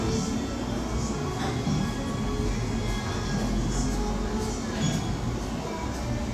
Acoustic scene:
cafe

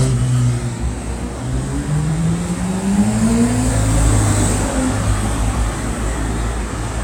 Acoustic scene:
street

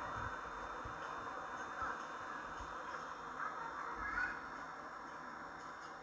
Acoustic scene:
park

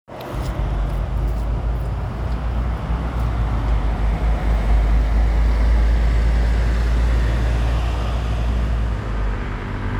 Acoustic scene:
street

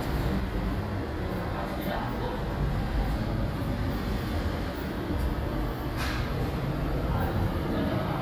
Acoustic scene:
subway station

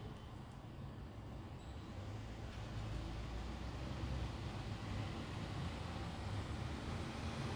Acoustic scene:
residential area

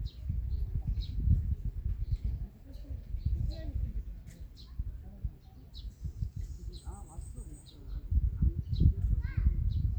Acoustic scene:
park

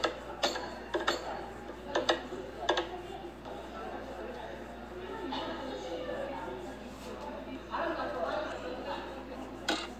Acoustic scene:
cafe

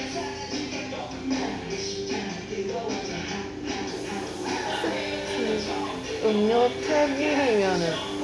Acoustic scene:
restaurant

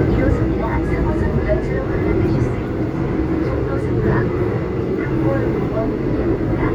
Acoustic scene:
subway train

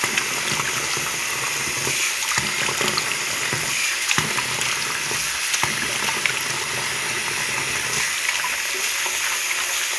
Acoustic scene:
restroom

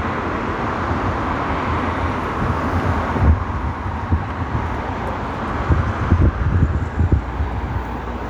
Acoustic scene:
street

